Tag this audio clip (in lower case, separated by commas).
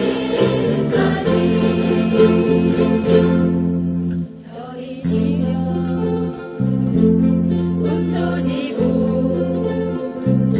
singing, inside a large room or hall, ukulele, music